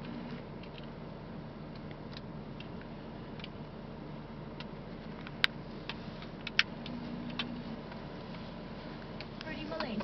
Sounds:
Radio

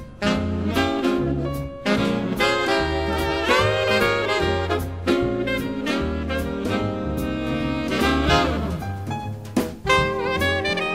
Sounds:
Music, Lullaby

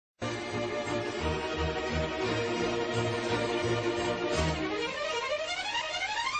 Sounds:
Music, Television

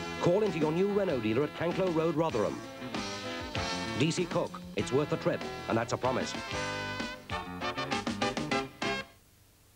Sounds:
Speech, Music

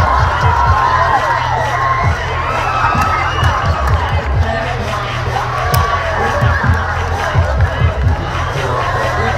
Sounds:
Crowd, Cheering

